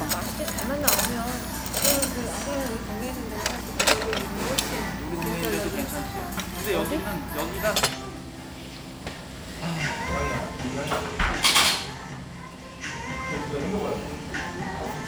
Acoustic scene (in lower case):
restaurant